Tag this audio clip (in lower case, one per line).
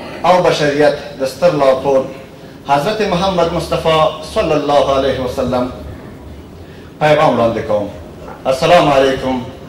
speech
man speaking
monologue